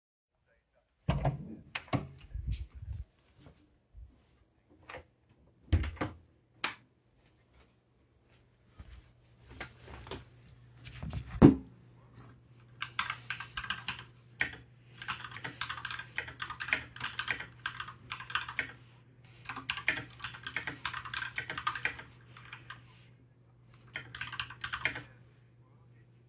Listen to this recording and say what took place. I opened the door to my bedroom. I closed the door behind me, turned on the light, sat down and typed something on my keyboard.